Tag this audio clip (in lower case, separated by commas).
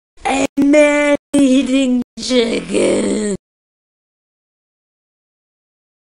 speech